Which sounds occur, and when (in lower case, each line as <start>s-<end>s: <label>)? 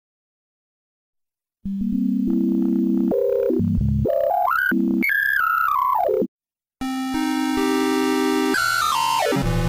1.6s-6.3s: background noise
1.6s-6.3s: music
6.8s-9.6s: background noise
6.8s-9.6s: music